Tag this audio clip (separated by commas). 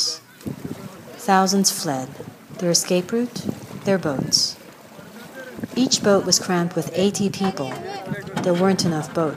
Speech, Vehicle, Water vehicle